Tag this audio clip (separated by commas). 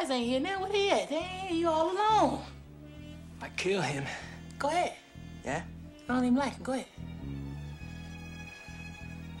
Music, Speech